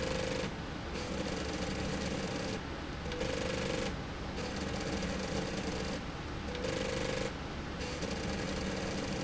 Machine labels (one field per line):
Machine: slide rail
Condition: abnormal